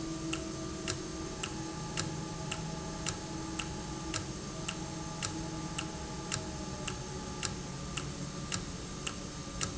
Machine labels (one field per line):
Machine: valve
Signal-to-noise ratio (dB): -6 dB